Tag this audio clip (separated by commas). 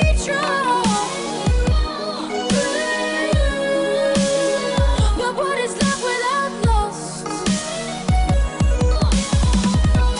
Music